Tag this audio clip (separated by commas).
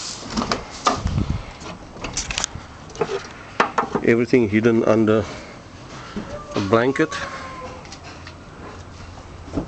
Speech